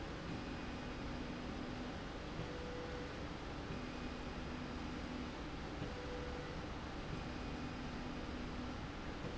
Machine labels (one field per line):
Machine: slide rail